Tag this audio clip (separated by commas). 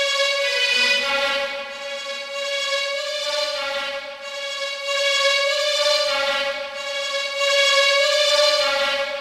Music, Background music